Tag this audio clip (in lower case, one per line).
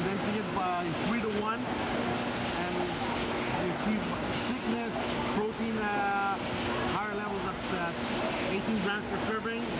speech